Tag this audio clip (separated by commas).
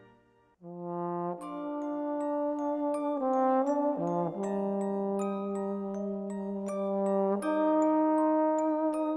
Music, Musical instrument, Trombone, Brass instrument